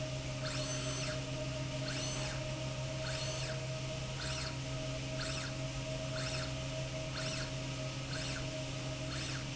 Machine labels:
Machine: slide rail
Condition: normal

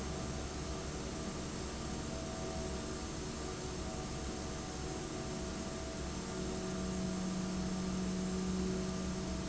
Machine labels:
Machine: fan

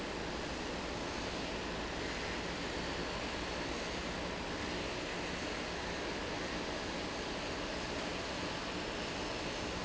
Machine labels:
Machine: fan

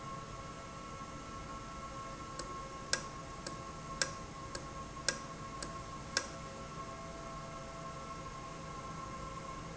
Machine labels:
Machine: valve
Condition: normal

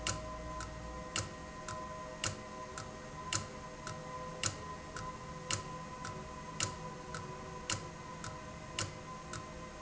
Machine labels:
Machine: valve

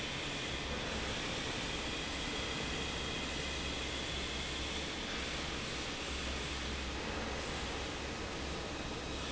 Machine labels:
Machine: fan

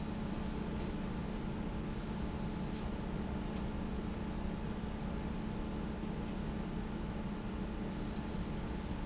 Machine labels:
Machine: fan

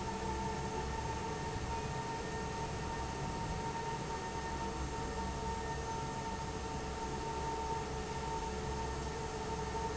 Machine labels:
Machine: fan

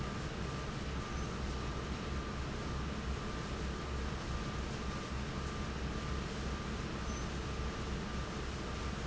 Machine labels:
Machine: fan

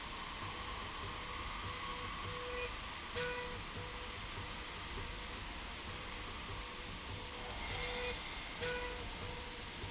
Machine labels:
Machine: slide rail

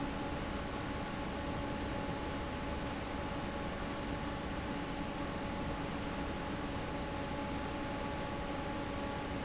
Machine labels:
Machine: fan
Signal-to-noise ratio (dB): -6 dB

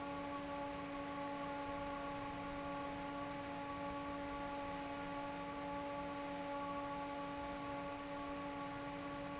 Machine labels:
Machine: fan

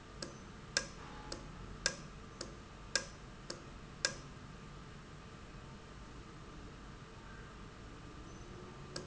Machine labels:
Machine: valve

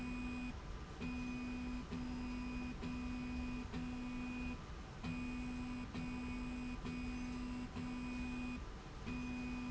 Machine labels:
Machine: slide rail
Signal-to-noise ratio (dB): 6 dB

